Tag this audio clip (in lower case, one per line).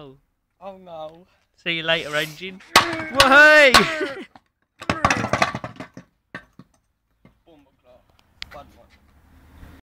speech